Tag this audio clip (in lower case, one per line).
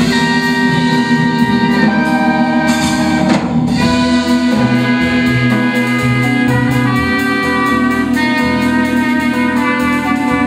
jazz
saxophone
drum kit
trumpet
music
musical instrument
percussion
brass instrument